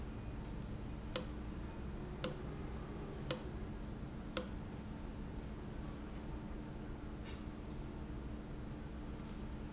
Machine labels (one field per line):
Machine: valve